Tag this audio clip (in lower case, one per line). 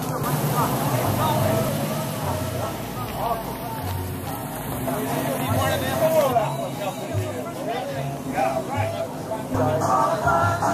speech